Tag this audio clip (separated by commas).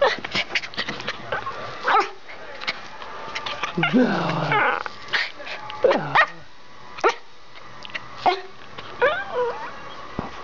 Bow-wow, Whimper (dog), Animal, pets, Bark, Yip, Dog